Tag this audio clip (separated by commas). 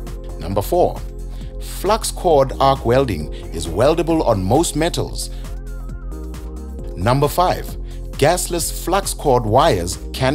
arc welding